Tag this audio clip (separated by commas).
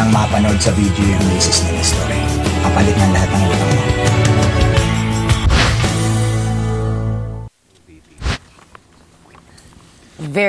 Speech, Music